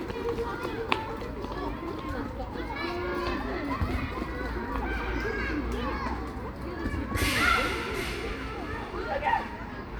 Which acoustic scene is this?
park